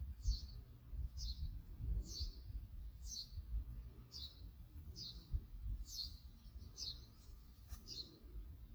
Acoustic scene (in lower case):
park